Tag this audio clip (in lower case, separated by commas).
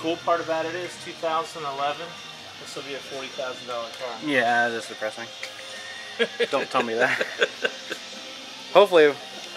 speech, music